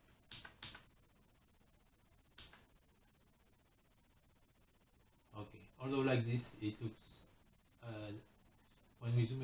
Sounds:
speech
inside a small room

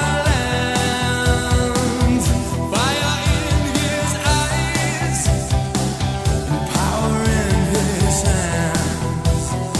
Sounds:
music

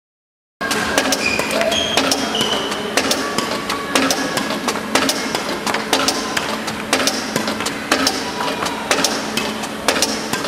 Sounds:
playing badminton

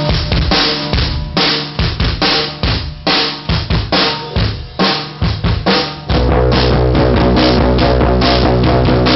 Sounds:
hi-hat
drum kit
snare drum
music
cymbal
drum roll
bass drum
drum

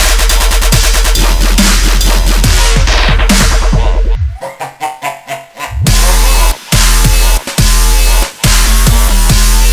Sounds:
music

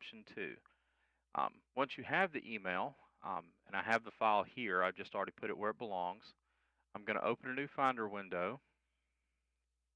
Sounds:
speech

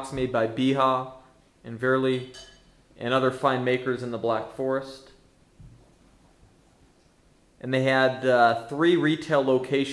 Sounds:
speech

